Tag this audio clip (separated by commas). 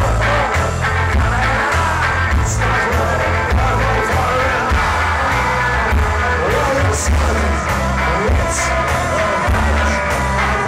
Music, Rock music, Punk rock